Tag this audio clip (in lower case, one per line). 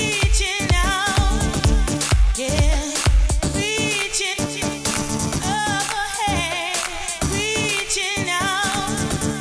music
disco